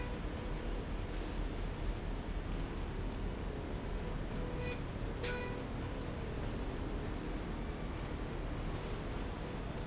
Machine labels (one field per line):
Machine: slide rail